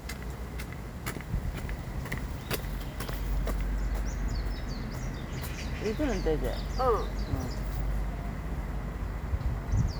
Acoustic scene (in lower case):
park